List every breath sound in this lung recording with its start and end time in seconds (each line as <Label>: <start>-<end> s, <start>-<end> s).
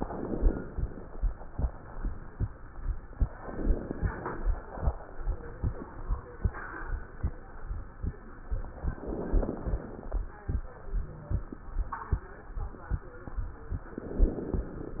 Inhalation: 0.00-0.70 s, 3.43-4.50 s, 8.94-10.21 s, 13.98-15.00 s
Crackles: 0.00-0.70 s, 3.43-4.50 s, 8.94-10.21 s, 13.98-15.00 s